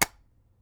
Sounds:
tap

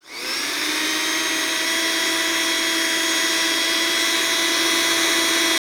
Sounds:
home sounds

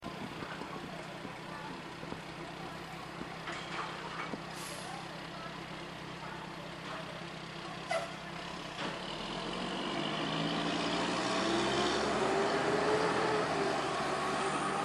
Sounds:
vehicle, motor vehicle (road)

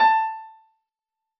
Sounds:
music, musical instrument, piano, keyboard (musical)

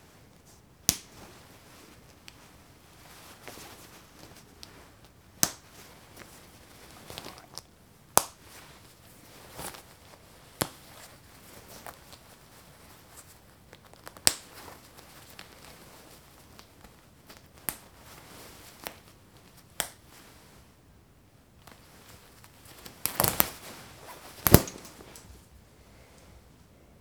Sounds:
domestic sounds, zipper (clothing)

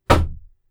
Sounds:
home sounds, door, knock

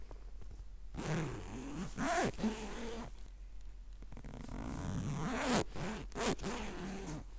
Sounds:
zipper (clothing), home sounds

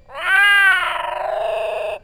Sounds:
animal, cat, pets, meow

